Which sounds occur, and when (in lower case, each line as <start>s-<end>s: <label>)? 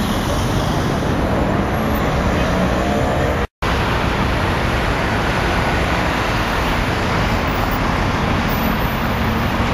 0.0s-3.5s: car
3.7s-9.7s: car